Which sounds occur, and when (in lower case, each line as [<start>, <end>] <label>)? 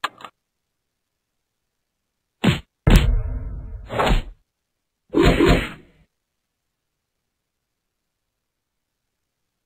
[0.00, 0.24] clicking
[0.00, 9.65] mechanisms
[2.38, 2.62] thwack
[2.85, 3.08] thwack
[2.85, 3.80] sound effect
[3.86, 4.30] thwack
[5.08, 5.72] thwack
[5.08, 6.07] sound effect